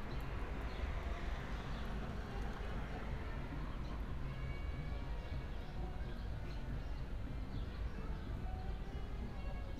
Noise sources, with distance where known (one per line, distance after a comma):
engine of unclear size, far
music from an unclear source, far